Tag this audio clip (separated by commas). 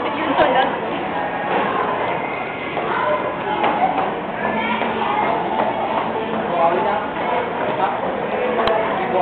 Speech